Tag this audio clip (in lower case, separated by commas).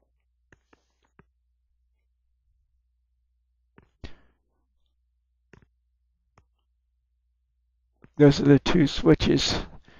speech, inside a small room